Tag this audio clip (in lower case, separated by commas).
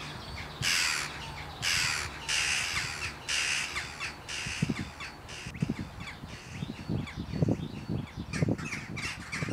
caw, crow, outside, rural or natural, bird